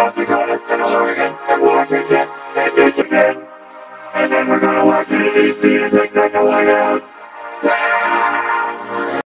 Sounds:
music

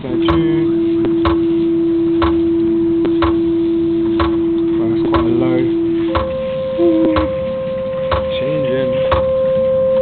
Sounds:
speech

